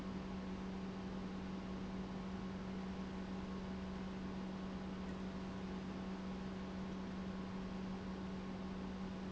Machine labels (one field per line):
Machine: pump